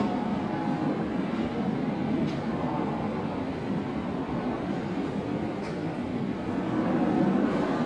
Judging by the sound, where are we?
in a subway station